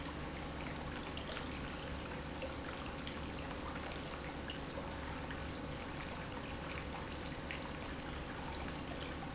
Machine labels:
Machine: pump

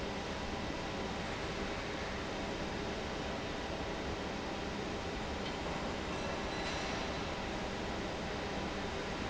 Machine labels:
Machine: fan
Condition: normal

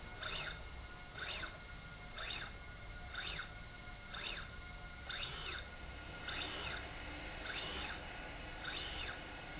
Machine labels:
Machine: slide rail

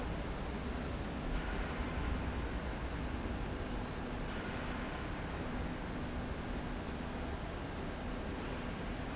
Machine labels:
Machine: slide rail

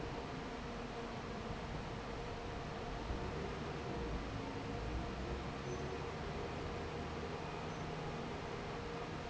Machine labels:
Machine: fan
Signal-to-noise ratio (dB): 0 dB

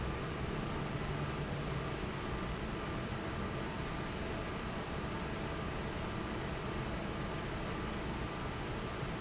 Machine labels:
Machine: fan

